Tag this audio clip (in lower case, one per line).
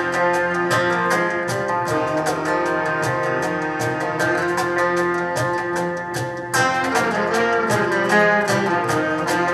music
folk music